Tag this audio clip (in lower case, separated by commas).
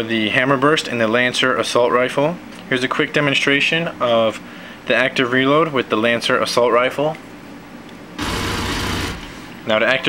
speech